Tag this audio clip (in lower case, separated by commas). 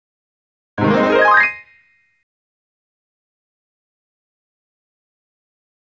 keyboard (musical), piano, music, musical instrument